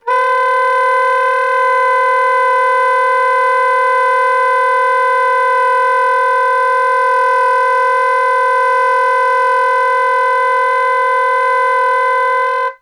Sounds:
music
wind instrument
musical instrument

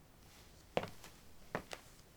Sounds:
walk

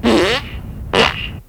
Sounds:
fart

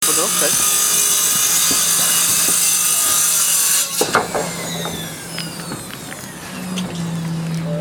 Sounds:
tools

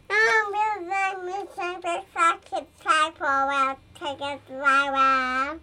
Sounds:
human voice
speech

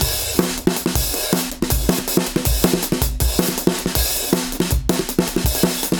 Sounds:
drum kit
musical instrument
music
percussion
drum

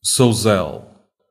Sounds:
human voice

